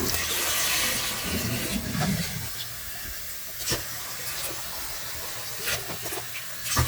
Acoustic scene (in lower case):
kitchen